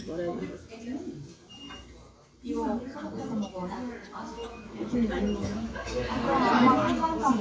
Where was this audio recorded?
in a restaurant